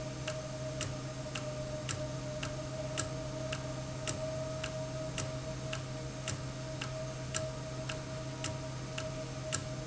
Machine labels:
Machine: valve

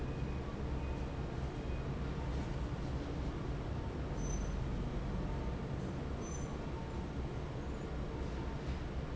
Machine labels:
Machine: fan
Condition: normal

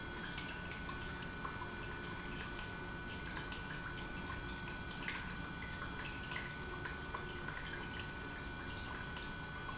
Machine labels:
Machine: pump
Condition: normal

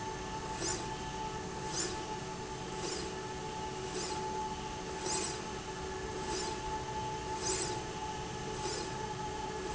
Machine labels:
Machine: slide rail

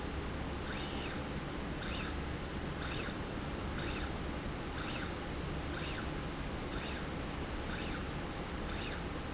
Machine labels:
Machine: slide rail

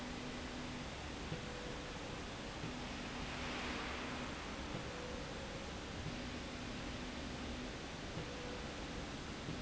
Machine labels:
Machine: slide rail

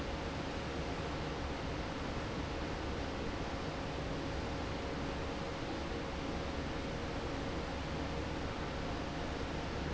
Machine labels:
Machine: fan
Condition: normal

